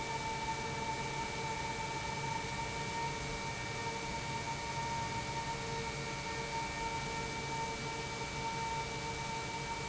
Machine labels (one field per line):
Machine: pump